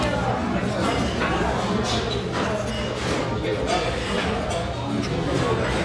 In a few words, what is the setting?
restaurant